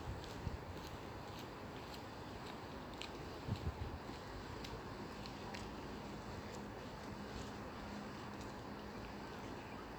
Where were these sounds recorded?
in a park